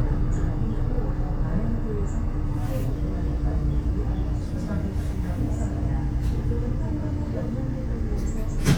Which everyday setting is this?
bus